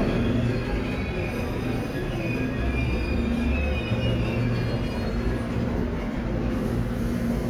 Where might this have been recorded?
in a subway station